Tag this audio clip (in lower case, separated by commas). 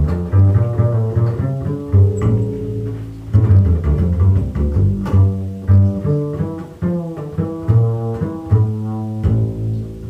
pizzicato, musical instrument, music